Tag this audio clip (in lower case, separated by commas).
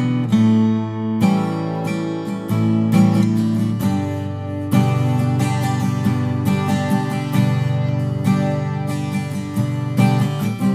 musical instrument, plucked string instrument, guitar, acoustic guitar, strum, music